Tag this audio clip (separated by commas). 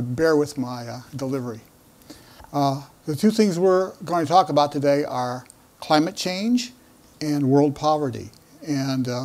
Speech